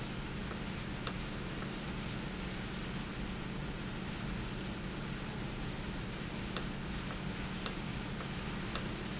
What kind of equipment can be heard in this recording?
valve